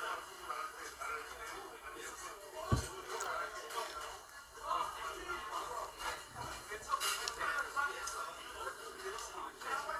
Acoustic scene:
crowded indoor space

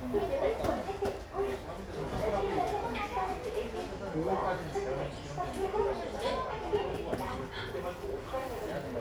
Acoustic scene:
crowded indoor space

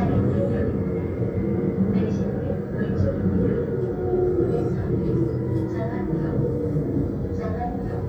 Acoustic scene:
subway train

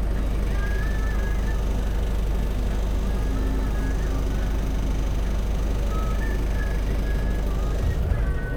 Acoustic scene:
bus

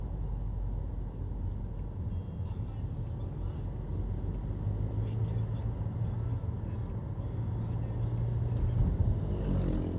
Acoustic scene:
car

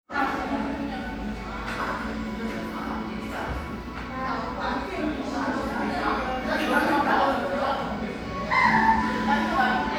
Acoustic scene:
crowded indoor space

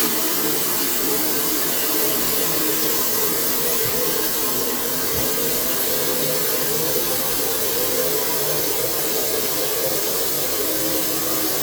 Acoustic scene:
kitchen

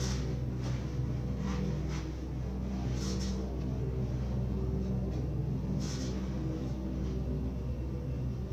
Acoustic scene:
elevator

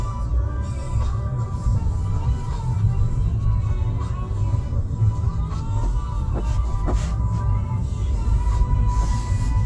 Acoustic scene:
car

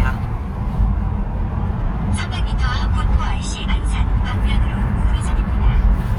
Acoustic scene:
car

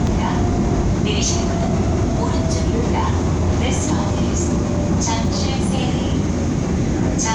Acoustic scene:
subway train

